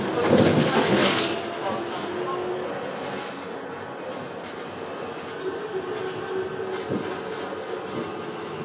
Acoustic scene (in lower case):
bus